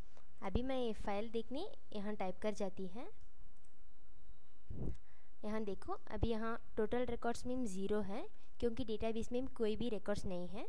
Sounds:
speech

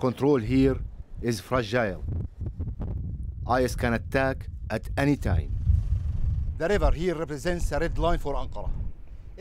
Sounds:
outside, rural or natural
speech

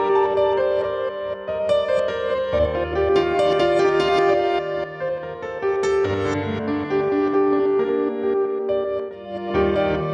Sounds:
music

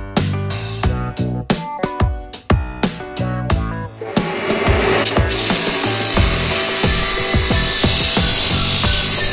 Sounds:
music

